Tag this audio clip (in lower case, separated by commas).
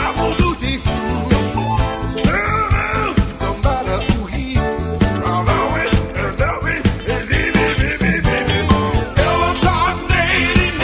music, disco